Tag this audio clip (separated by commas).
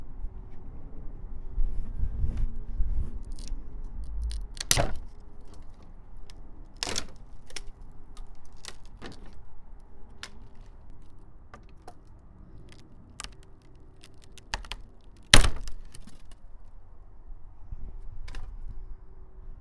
Wood, Tearing